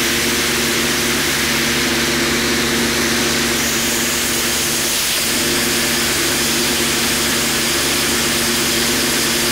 Water spraying from hose